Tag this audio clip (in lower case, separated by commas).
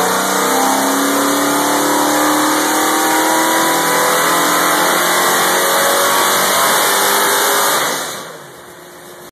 revving, engine, medium engine (mid frequency)